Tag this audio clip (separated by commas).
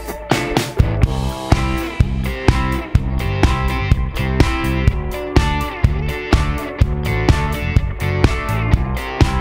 Music